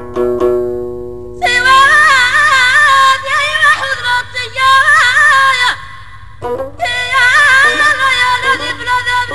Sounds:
Music

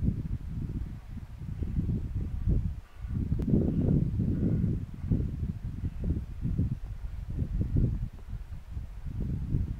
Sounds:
cheetah chirrup

